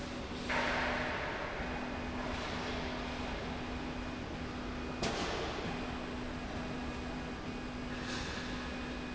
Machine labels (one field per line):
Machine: slide rail